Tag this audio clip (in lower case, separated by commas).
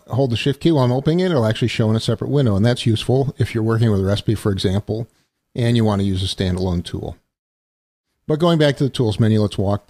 speech